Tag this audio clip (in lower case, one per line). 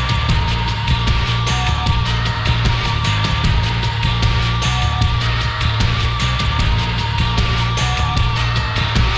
music